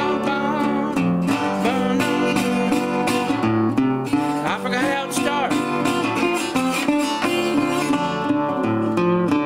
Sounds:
music
slide guitar

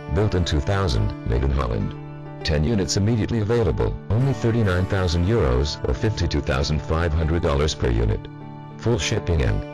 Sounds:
speech
music

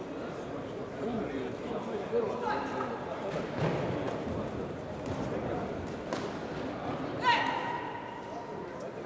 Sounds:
speech

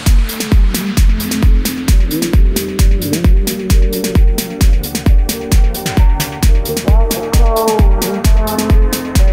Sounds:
music

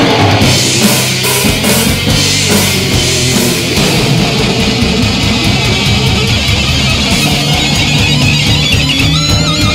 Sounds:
drum
music
musical instrument
drum kit
inside a small room

